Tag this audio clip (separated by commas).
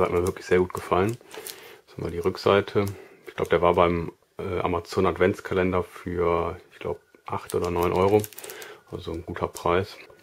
Speech